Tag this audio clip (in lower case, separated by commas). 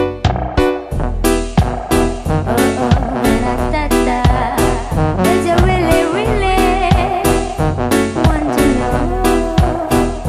music